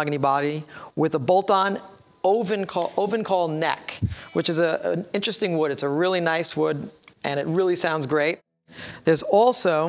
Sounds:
Music, Speech

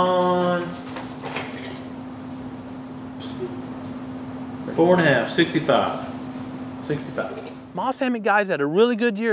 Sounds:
Speech

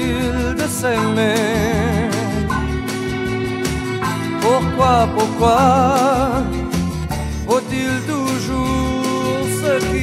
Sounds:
Music

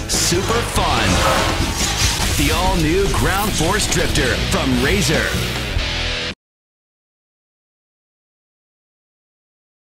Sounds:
Music, Speech

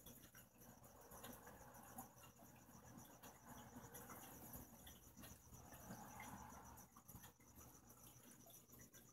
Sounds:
Cricket, Insect

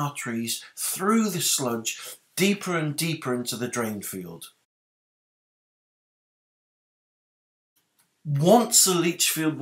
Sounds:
Speech

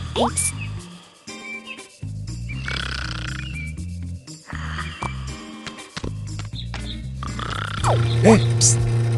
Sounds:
Speech, Music, inside a large room or hall

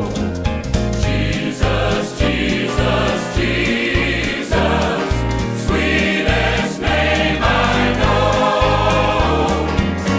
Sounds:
Choir, Music

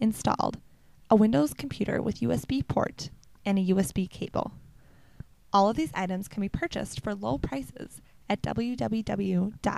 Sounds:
Speech

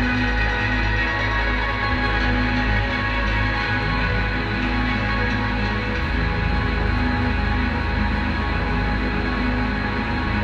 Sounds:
Music

